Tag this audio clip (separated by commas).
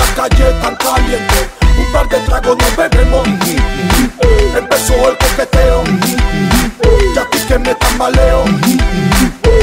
Music, Reggae